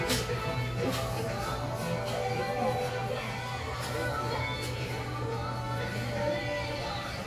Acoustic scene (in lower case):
crowded indoor space